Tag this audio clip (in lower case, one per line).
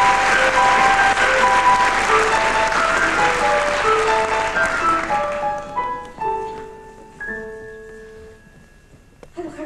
music
speech